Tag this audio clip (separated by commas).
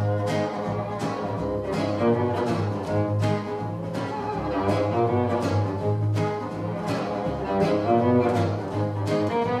Bowed string instrument, Musical instrument, Music, String section